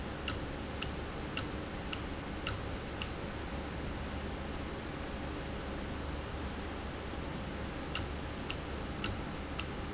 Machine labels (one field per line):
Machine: valve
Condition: normal